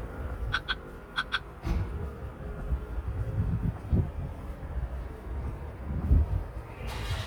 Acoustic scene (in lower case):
residential area